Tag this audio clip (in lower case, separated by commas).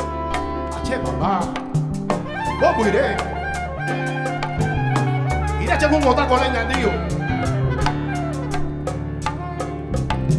percussion, drum